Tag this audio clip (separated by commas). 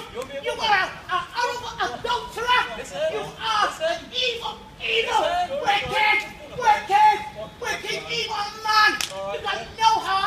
Speech